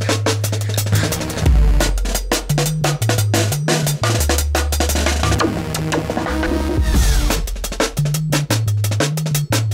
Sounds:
music

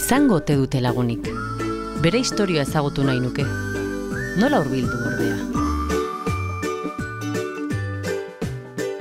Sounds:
speech, music

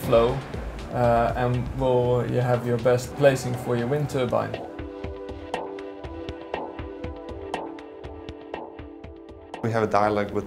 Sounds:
music, speech

